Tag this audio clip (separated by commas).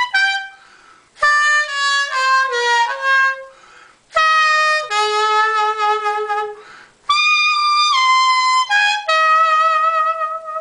Music